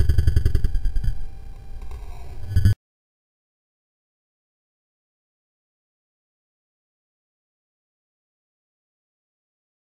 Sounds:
sound effect

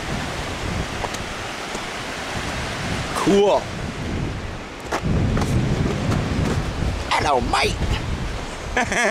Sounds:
waterfall

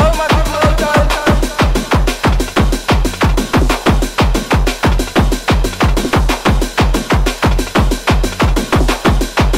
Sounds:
music

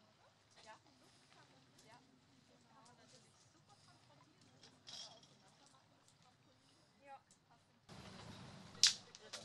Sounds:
speech

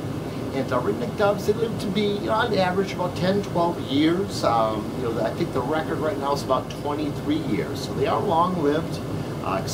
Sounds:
speech

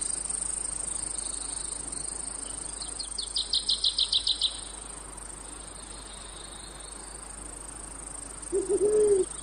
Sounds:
cricket
insect

